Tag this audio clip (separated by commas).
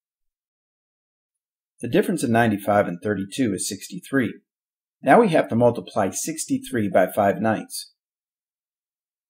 Narration, Speech